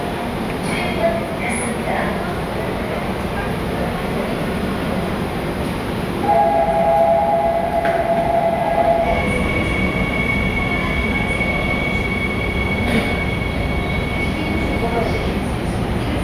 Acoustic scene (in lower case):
subway station